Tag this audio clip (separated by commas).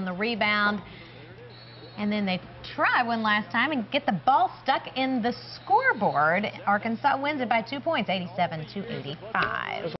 Speech